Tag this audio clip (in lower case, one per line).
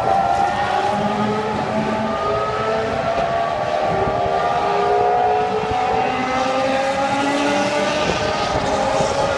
car
heavy engine (low frequency)
vroom
vehicle